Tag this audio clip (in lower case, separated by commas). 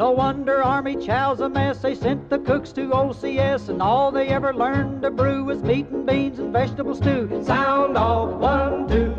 music